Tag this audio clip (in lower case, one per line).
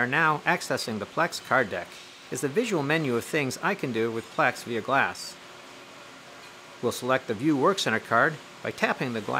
speech